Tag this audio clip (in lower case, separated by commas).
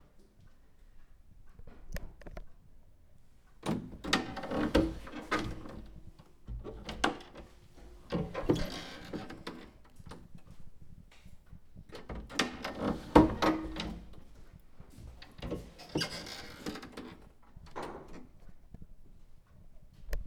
home sounds, door